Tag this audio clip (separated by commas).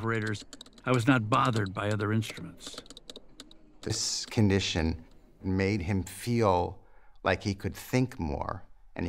Computer keyboard